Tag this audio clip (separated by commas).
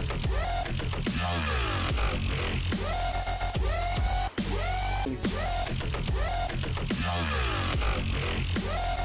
Electronic music, Music, Dubstep